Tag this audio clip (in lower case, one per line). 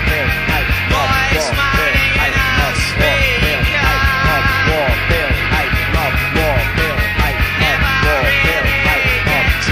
music